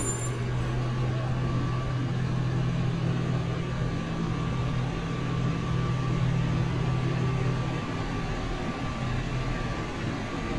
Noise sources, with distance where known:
large-sounding engine

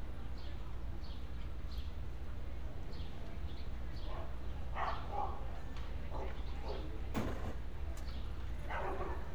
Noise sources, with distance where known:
dog barking or whining, far

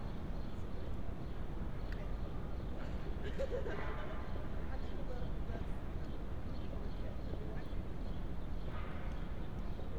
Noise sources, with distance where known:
person or small group talking, near

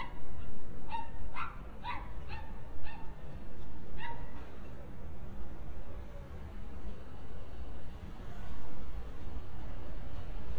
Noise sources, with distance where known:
dog barking or whining, near

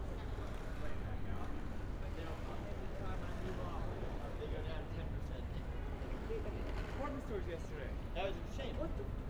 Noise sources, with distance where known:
person or small group talking

